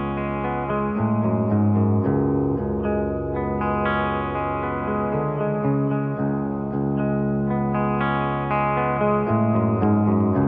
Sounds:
music

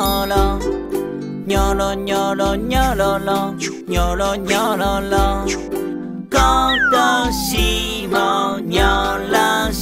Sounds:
music for children, music

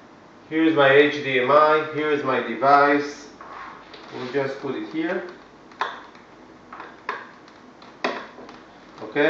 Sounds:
speech

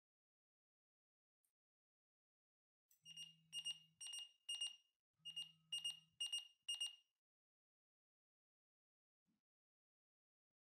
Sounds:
smoke detector beeping

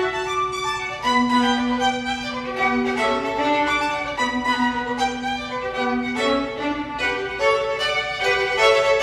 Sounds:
musical instrument, music, violin

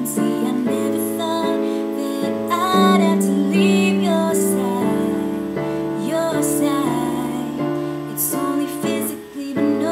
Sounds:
music, female singing

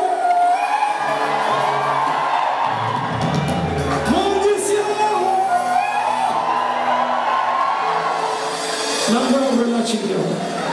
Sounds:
music, speech

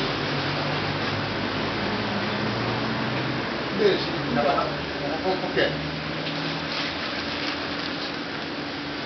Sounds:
speech

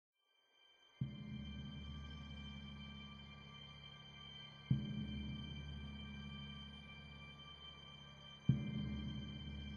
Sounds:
music

